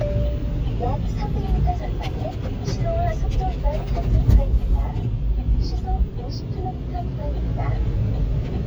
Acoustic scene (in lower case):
car